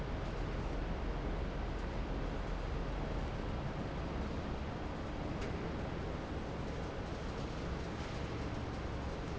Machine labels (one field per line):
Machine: fan